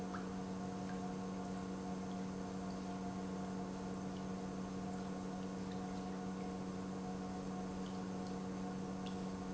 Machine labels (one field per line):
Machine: pump